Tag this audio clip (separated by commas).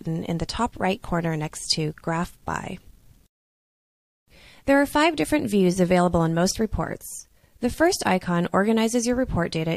Speech